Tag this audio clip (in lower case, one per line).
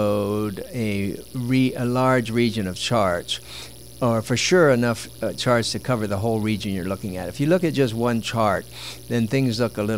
speech